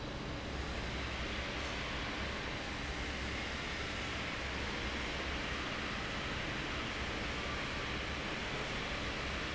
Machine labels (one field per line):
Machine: fan